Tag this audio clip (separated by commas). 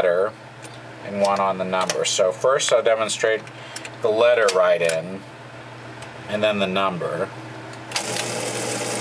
Engine, Speech